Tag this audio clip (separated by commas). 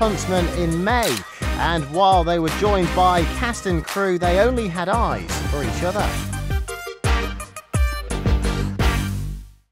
Speech, Music